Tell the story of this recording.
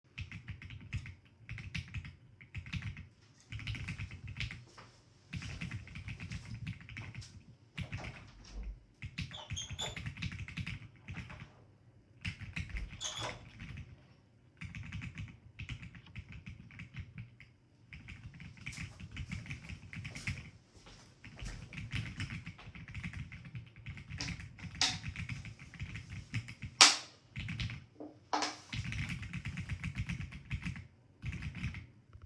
I was typing on the keyboard while someone went to the door and opened and closed it. Then they came back to the desk and picked up a can.